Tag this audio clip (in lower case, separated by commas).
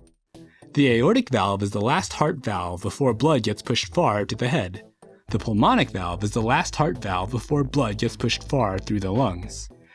speech, narration, speech synthesizer